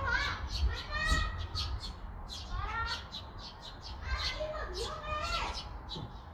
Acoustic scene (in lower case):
park